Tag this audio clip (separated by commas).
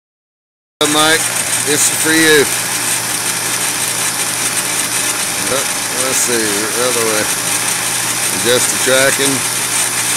Tools, Vibration, Speech, Engine